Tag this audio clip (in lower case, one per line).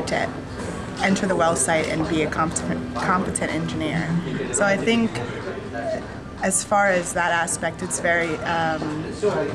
speech
music
inside a public space